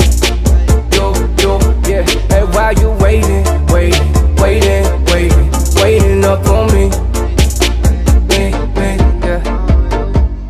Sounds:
afrobeat, music

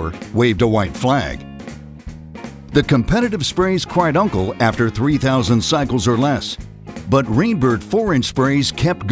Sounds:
music, speech

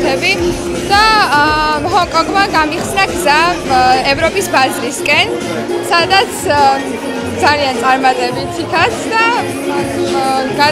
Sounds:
music, speech

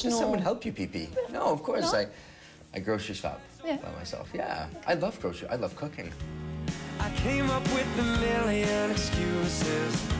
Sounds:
music, speech

